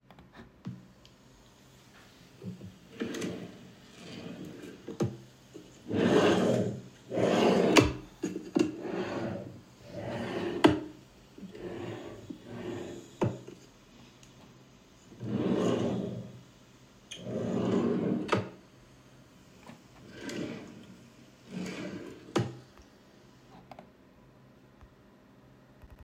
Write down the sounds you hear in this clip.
wardrobe or drawer